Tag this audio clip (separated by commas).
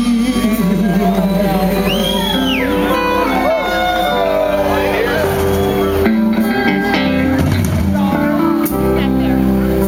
Blues, Music, Speech